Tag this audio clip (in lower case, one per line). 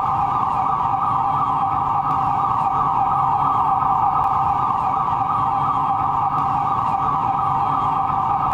siren
motor vehicle (road)
alarm
vehicle